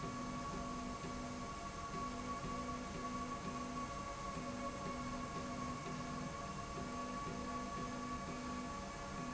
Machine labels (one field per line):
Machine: slide rail